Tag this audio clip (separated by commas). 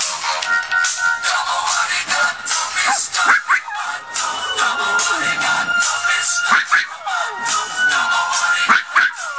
Domestic animals, Singing, Animal, Dog